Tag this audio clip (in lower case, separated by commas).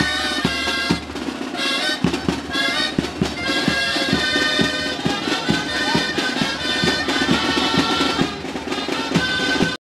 music, traditional music, independent music